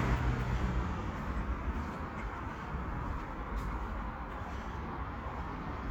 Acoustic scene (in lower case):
residential area